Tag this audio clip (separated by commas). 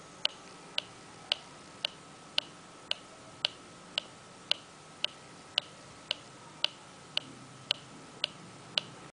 Tick